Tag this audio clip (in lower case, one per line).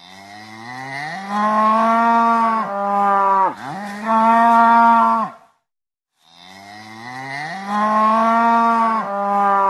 cow lowing